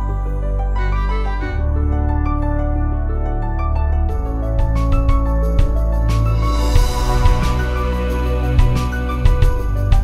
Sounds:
Ambient music, Music, Background music

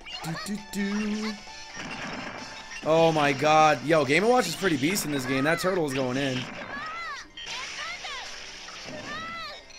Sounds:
Music, Speech

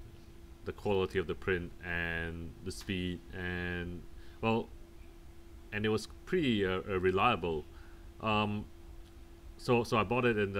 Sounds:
Speech

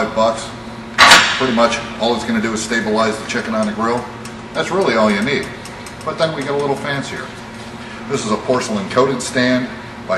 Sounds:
Speech

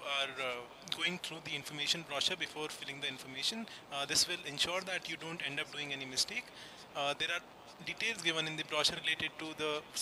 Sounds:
Speech

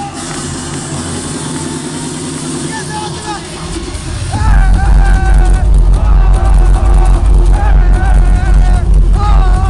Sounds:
Sound effect, Music, Speech

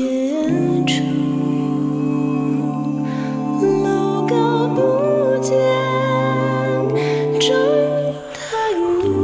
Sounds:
Music

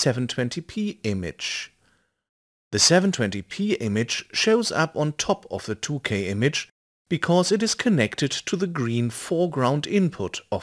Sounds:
Speech

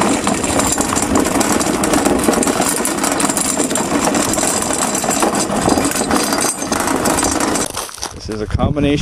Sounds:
Speech, outside, rural or natural

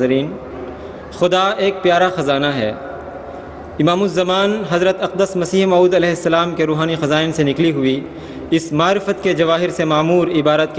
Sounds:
man speaking, Speech

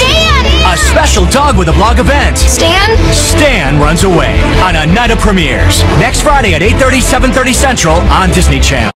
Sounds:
Speech, Music

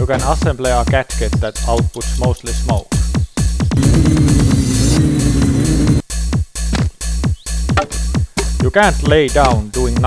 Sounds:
Speech, Music

